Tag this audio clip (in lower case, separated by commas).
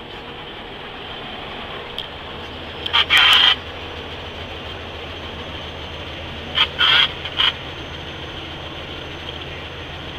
vehicle